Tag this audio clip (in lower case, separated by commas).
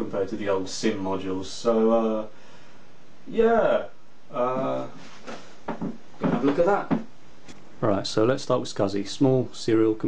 speech